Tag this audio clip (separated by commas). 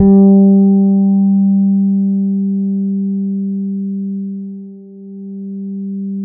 Bass guitar, Plucked string instrument, Music, Guitar, Musical instrument